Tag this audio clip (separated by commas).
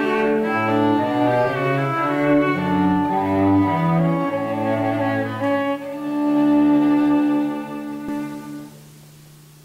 Bowed string instrument, Cello, fiddle